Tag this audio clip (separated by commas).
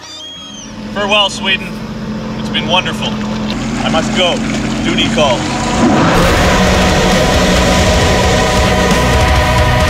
Speech, Music